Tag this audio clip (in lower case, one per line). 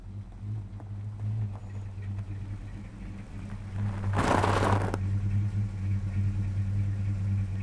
truck
motor vehicle (road)
vehicle